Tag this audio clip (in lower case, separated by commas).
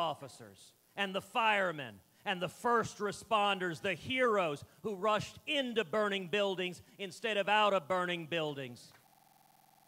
man speaking, speech, narration